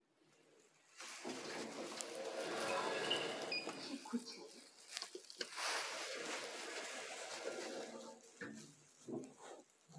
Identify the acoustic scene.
elevator